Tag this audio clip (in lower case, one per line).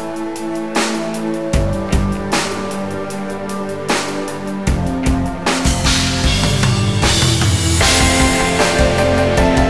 music